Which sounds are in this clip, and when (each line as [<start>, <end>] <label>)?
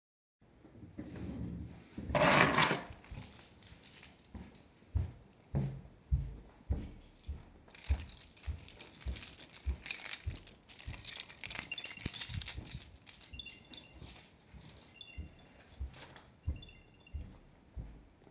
[1.88, 4.15] keys
[4.78, 11.22] footsteps
[7.71, 12.88] keys
[16.39, 17.98] footsteps